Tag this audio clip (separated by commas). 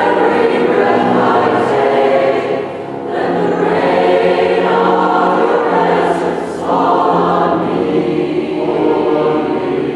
Music